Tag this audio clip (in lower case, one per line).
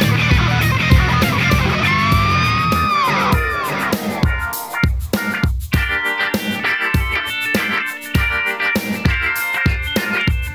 music